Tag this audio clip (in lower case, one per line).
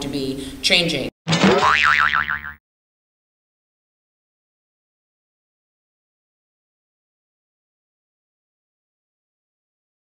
speech
inside a large room or hall
silence